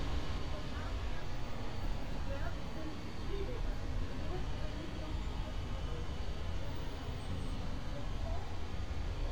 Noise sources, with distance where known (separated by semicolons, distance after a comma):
unidentified human voice